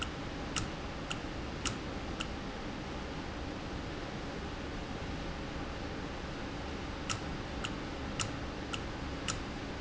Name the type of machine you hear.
valve